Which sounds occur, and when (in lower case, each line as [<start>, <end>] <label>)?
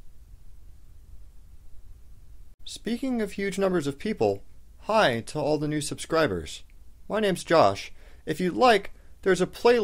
[0.00, 9.83] mechanisms
[2.63, 4.42] male speech
[4.83, 6.66] male speech
[6.69, 6.76] tick
[7.10, 7.92] male speech
[7.96, 8.26] breathing
[8.28, 8.91] male speech
[8.54, 8.64] clicking
[8.95, 9.20] breathing
[9.25, 9.83] male speech